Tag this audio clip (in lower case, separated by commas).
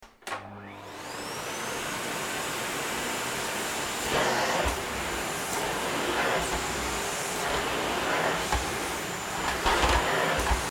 domestic sounds